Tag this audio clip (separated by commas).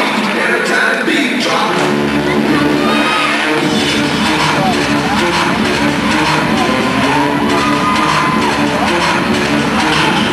Music, Crowd, Cheering